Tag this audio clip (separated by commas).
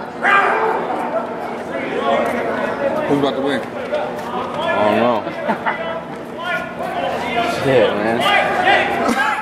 Speech, Crowd, Hubbub